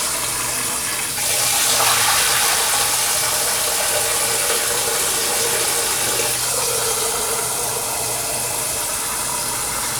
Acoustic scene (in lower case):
kitchen